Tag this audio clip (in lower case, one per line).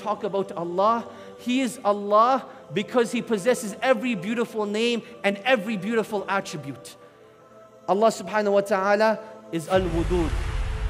speech
music